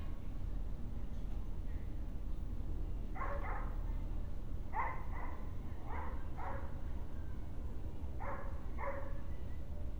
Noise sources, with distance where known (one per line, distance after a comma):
dog barking or whining